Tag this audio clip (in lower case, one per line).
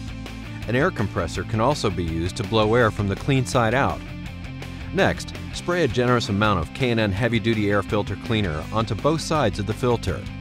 speech
music